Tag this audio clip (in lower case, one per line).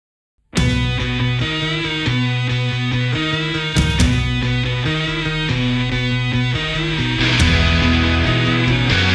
music
progressive rock